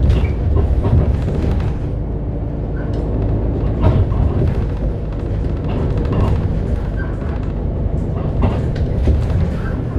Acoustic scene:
bus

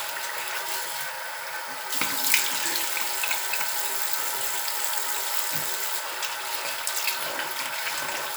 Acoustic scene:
restroom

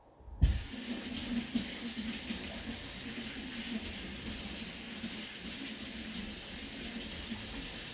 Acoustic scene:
kitchen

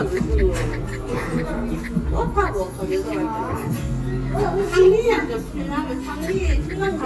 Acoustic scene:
restaurant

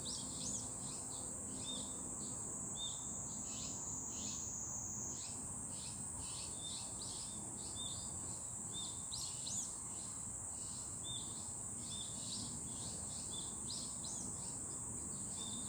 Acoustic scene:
park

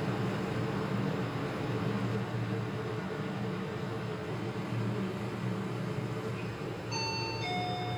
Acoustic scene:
elevator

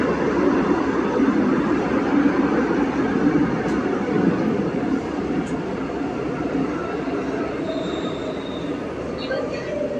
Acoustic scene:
subway train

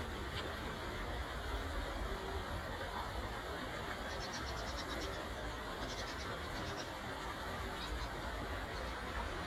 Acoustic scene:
park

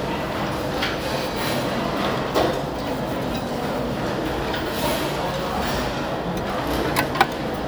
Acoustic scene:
restaurant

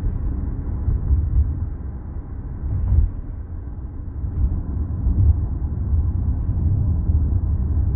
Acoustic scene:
car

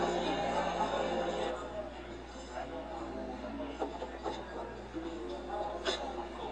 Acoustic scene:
cafe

